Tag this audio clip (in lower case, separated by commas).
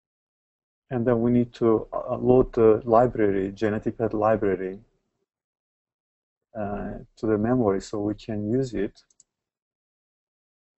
silence, speech